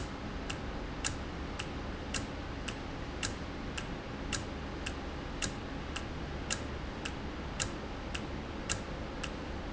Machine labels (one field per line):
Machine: valve